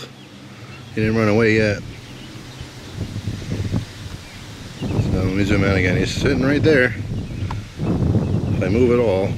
A man talks as birds sing and water moves and the wind blows